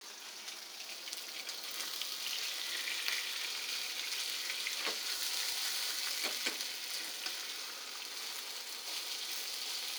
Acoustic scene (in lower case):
kitchen